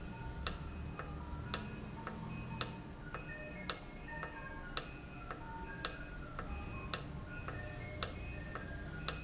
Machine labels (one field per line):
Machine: valve